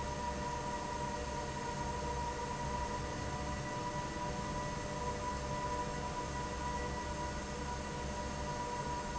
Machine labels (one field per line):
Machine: fan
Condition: normal